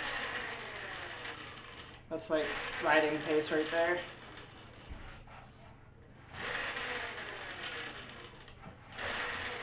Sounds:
vehicle
bicycle

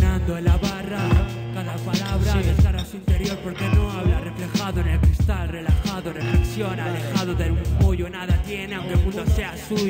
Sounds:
music

